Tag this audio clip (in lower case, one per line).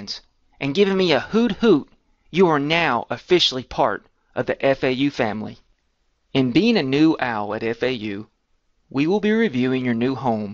speech